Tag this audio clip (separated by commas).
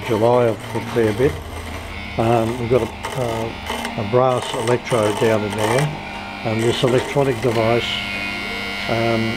Tools, Power tool